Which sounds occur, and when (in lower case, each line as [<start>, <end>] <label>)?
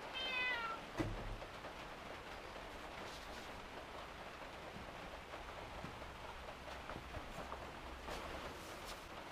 [0.00, 9.31] mechanisms
[0.10, 0.74] meow
[2.91, 3.65] surface contact
[8.05, 9.15] surface contact